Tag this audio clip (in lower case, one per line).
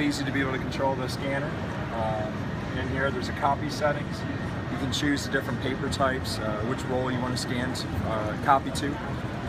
speech